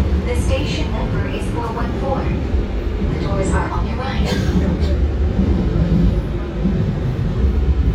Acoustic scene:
subway train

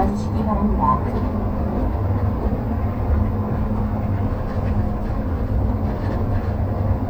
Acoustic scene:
bus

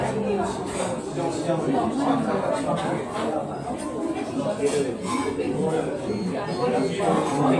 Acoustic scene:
restaurant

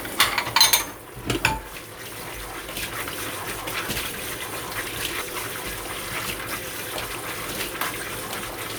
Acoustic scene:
kitchen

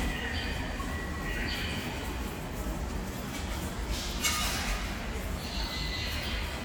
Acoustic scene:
subway station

